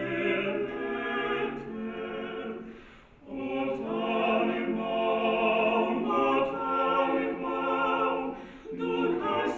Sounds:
opera, music, christmas music, lullaby

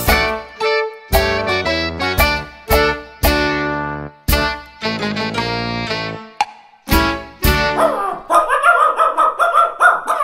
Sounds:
music, bow-wow

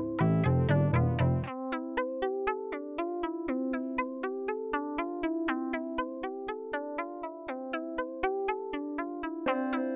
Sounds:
music, synthesizer

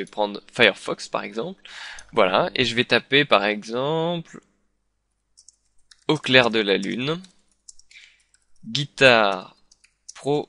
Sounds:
speech

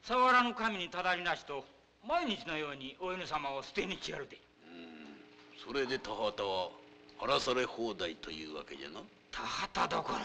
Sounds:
speech

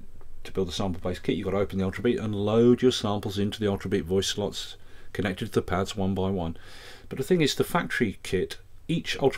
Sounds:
speech

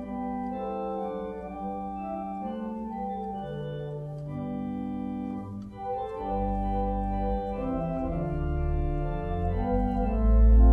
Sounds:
hammond organ, playing hammond organ, organ

